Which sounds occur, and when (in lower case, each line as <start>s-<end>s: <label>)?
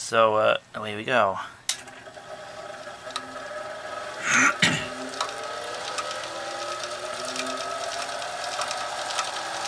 0.0s-1.5s: man speaking
0.0s-9.6s: mechanisms
1.6s-1.7s: generic impact sounds
3.1s-3.2s: tick
4.1s-4.9s: throat clearing
5.1s-5.3s: tick
5.8s-6.0s: tick
7.3s-7.4s: tick
8.5s-8.6s: tick
9.1s-9.2s: tick